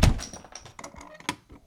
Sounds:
thud

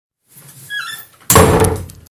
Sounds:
Slam, Door, Domestic sounds

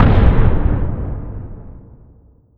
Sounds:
Explosion, Boom

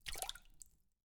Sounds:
splatter, Liquid

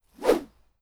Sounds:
swish

